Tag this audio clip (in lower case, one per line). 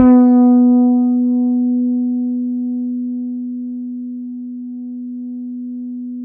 music
guitar
plucked string instrument
musical instrument
bass guitar